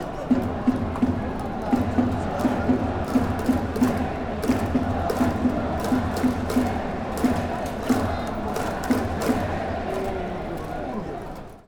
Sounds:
Crowd, Human group actions

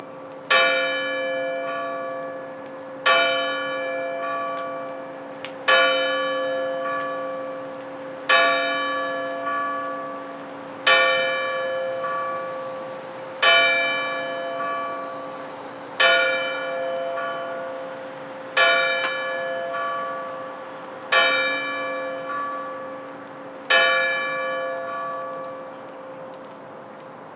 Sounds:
Church bell, Bell

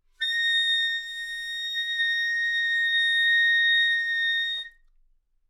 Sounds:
Musical instrument, Wind instrument, Music

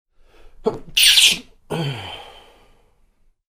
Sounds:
Respiratory sounds, Sneeze

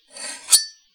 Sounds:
silverware, Domestic sounds

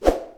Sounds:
swoosh

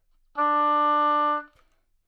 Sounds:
Music, Musical instrument, Wind instrument

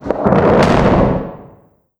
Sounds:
Boom, Explosion

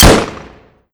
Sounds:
Gunshot, Explosion

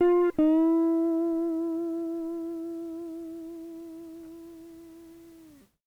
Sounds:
Musical instrument, Music, Plucked string instrument, Guitar

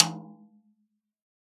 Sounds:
Drum, Percussion, Musical instrument, Music, Snare drum

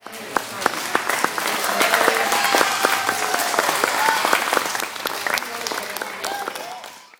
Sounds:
Human group actions, Applause, Cheering, Crowd

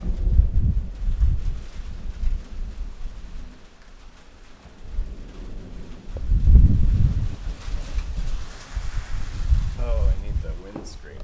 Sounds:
Rain, Water

